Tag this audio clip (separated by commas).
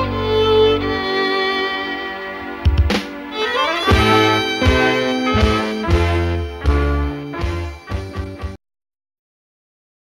Music, fiddle, Musical instrument